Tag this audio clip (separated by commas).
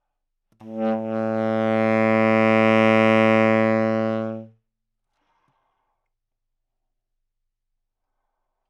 Music, Wind instrument, Musical instrument